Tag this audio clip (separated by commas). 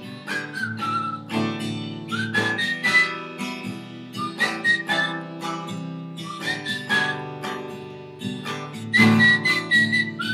Musical instrument, Guitar, Music, Strum